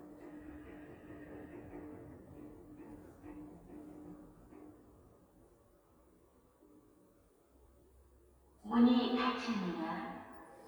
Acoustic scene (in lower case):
elevator